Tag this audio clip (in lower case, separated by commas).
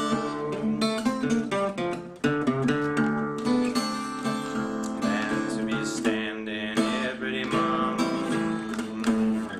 music, strum, guitar, plucked string instrument, musical instrument, blues